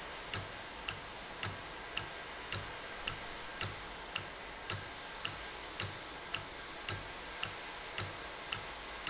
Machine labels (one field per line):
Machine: valve